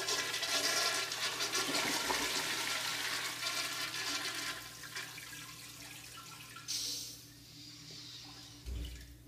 A person flushes the toilet as the water rushes off